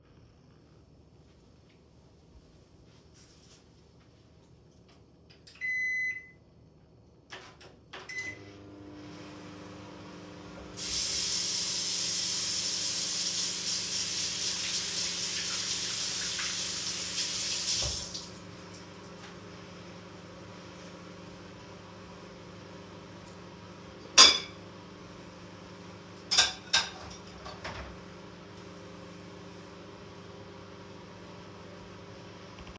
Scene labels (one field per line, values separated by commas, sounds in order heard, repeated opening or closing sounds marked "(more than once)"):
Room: kitchen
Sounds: microwave, running water, cutlery and dishes